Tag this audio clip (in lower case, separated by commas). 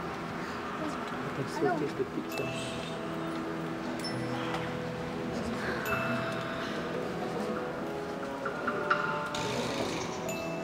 music, orchestra, speech